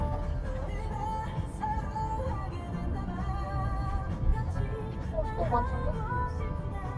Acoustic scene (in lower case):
car